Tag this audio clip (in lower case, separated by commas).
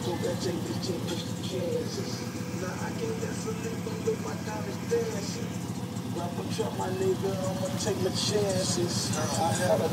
car, music, vehicle